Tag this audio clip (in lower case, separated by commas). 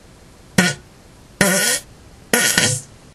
fart